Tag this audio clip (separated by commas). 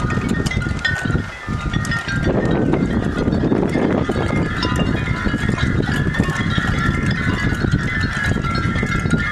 Tubular bells